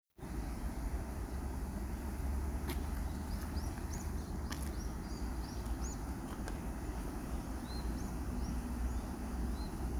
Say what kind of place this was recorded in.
park